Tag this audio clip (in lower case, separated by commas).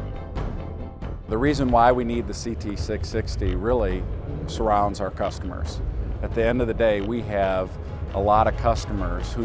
music, speech